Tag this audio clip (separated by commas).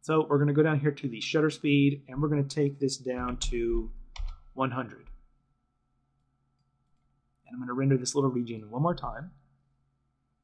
Speech